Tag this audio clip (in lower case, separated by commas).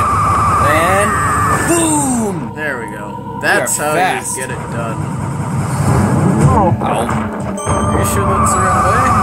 speech